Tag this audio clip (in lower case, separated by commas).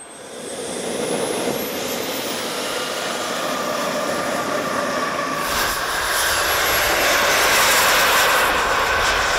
vehicle, aircraft, fixed-wing aircraft